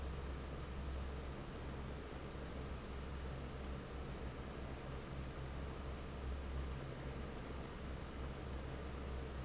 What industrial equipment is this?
fan